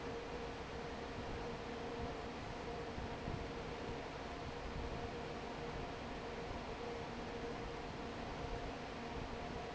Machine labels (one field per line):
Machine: fan